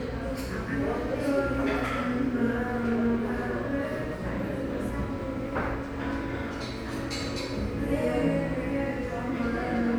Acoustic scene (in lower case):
cafe